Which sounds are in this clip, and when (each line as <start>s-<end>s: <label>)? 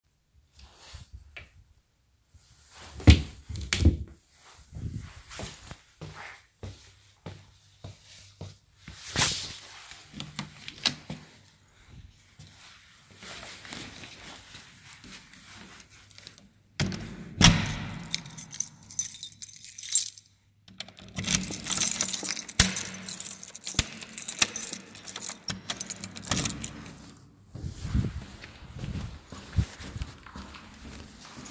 2.6s-4.3s: wardrobe or drawer
5.9s-9.0s: footsteps
10.1s-11.5s: door
13.1s-16.4s: footsteps
16.6s-18.1s: door
17.5s-27.8s: keys
20.8s-27.4s: door
28.1s-31.5s: footsteps